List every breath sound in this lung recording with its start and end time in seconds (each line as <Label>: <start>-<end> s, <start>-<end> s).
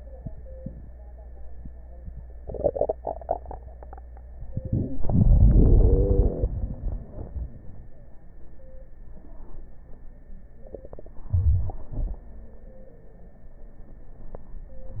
Inhalation: 4.49-4.97 s, 11.30-11.81 s
Exhalation: 4.97-7.94 s, 11.91-12.23 s
Wheeze: 5.48-6.29 s